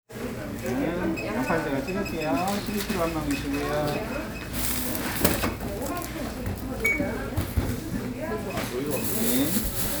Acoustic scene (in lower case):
crowded indoor space